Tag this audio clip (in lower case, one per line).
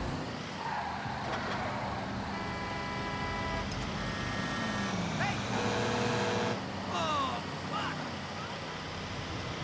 speech
car
vehicle